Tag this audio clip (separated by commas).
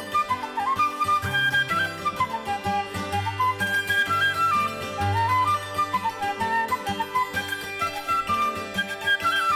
Traditional music, Music